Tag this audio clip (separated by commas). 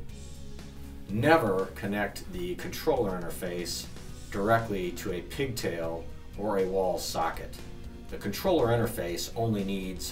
Music, Speech